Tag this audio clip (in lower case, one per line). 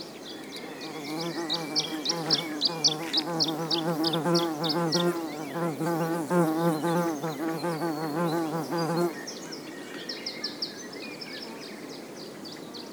wild animals
bird
animal
insect
buzz